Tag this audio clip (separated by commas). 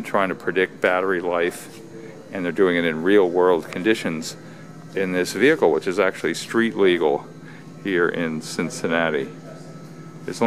Speech